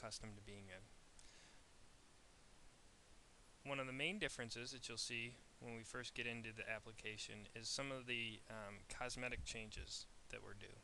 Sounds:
Speech

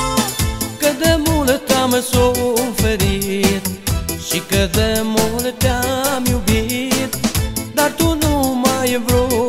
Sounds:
Music

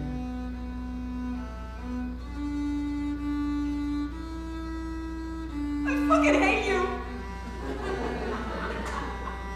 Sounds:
Speech, Music

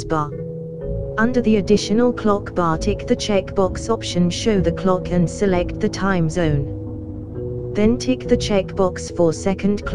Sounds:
Speech, Music

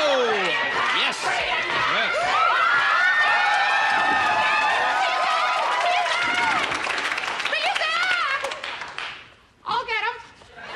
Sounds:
Speech

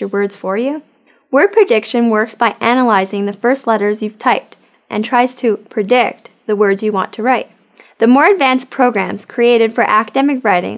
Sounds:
Speech

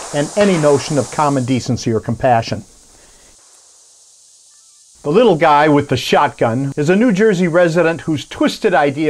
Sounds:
Speech

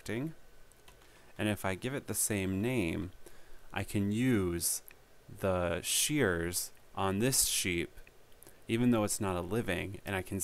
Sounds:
Speech

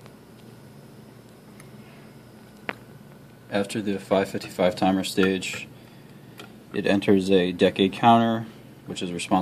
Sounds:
Speech

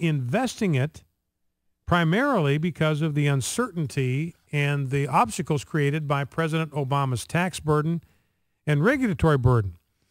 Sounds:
Speech

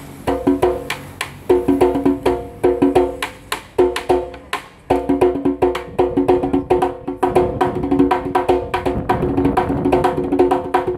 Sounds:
Percussion, Music, Musical instrument, Wood block, Drum

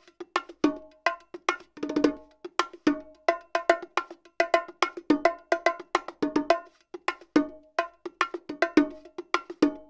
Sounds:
playing bongo

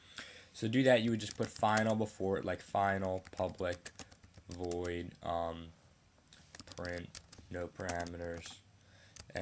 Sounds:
Speech

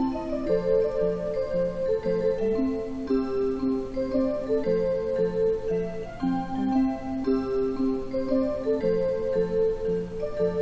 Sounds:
Music

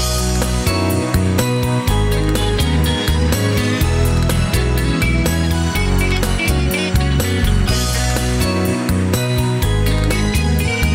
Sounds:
Music

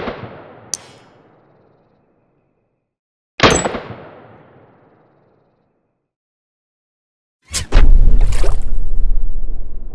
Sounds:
machine gun shooting

